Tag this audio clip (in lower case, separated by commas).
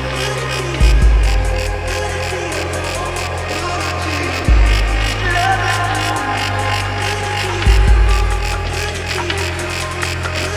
dubstep, music